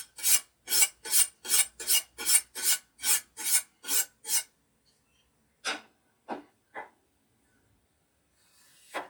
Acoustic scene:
kitchen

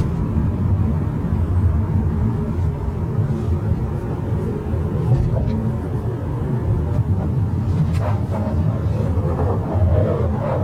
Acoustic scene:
car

